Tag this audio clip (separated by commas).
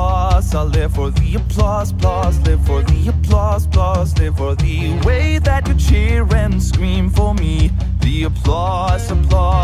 Music, Rock and roll